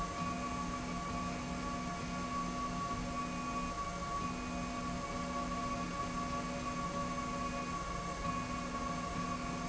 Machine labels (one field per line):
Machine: slide rail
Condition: normal